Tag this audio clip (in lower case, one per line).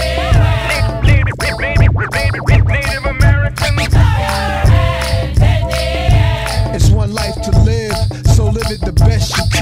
music
hip hop music